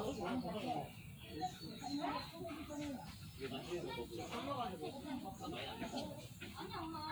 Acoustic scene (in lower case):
park